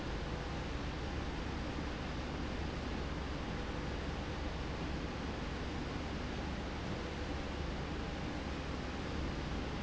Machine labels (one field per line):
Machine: slide rail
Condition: normal